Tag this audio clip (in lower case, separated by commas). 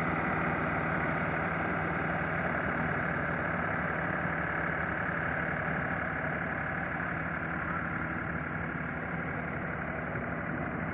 vehicle